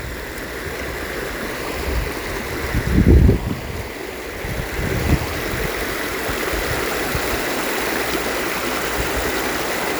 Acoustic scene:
park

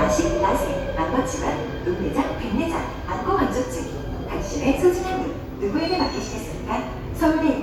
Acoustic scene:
subway station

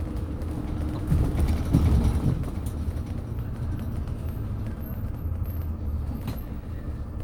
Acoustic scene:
bus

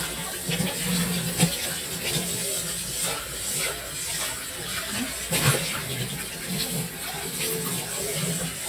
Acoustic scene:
kitchen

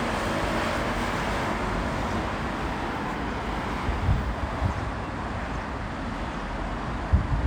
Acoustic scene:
street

